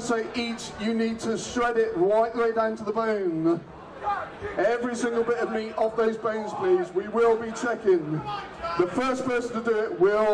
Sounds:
speech

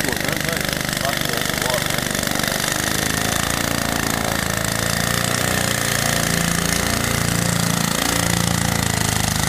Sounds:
boat, speech, vehicle, motorboat

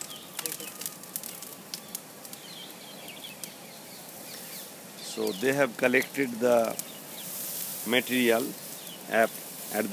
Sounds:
speech, bird, outside, rural or natural

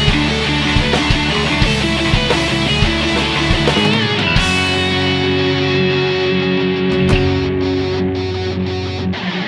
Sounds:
musical instrument, plucked string instrument, music, strum, guitar

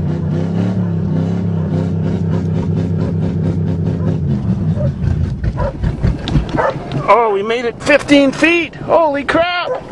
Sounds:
vehicle, speech, car

